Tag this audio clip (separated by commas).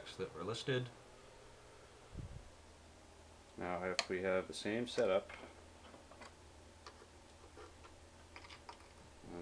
Speech